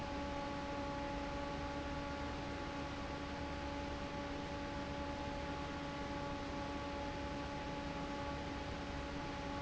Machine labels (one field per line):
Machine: fan